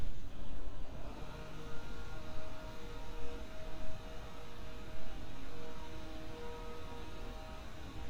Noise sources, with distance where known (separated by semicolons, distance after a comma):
unidentified powered saw, far